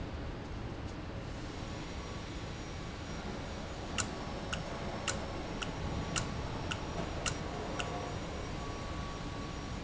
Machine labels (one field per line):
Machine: valve